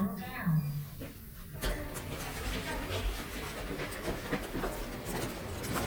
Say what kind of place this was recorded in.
elevator